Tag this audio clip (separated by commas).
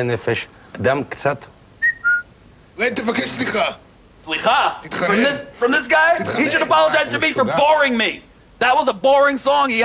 Whistling